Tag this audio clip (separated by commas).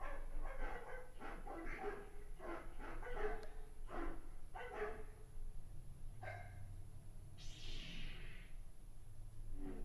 Sound effect